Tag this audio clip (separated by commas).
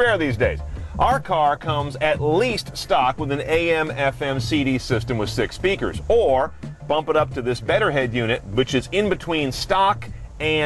Music, Speech